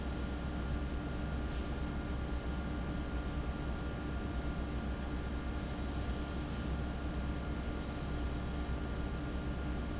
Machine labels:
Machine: fan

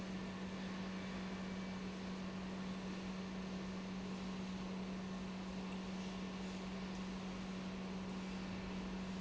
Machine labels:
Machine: pump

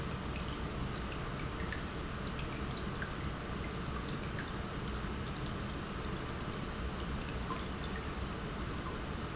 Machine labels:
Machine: pump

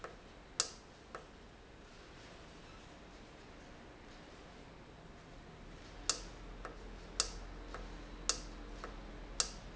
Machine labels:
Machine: valve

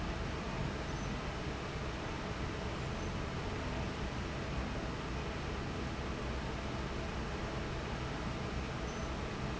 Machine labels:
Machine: fan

